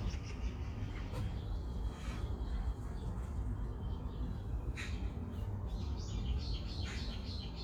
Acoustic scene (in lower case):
park